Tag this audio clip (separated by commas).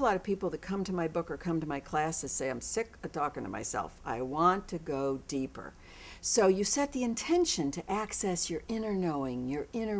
Speech